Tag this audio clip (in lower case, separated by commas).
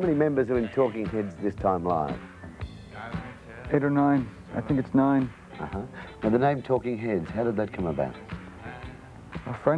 music, speech